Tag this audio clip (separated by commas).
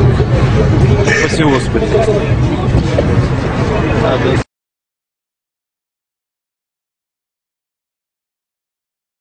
Speech